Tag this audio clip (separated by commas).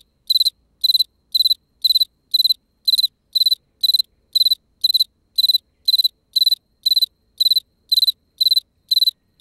cricket chirping